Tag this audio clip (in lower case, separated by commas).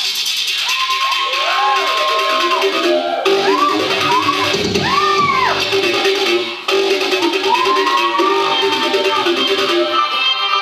electronic music, dubstep, music